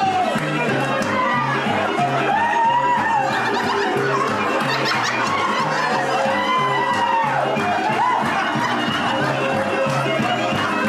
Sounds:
Laughter, Music

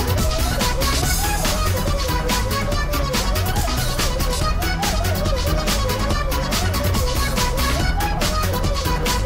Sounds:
Music

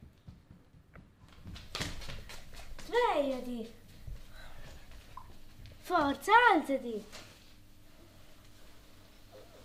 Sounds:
Speech

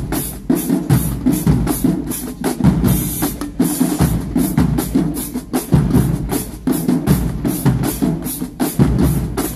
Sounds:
Percussion, Music

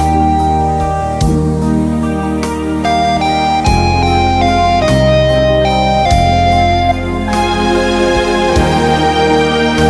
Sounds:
Piano, Electric piano, Music, Musical instrument, Keyboard (musical)

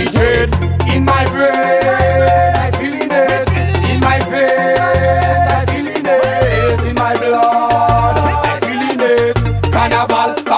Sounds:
Music of Africa

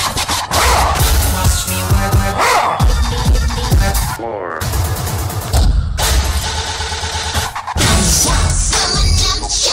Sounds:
Scratching (performance technique)

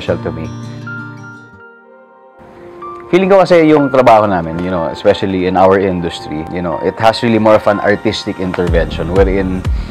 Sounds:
Speech, Music

